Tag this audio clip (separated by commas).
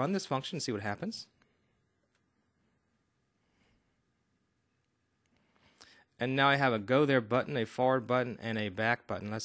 Speech